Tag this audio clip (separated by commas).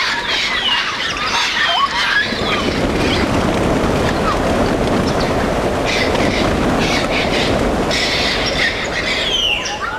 bird squawking